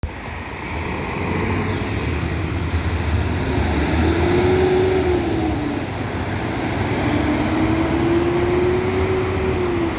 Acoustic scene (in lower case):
street